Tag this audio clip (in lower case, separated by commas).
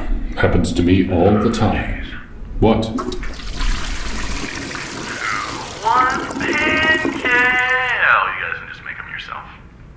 speech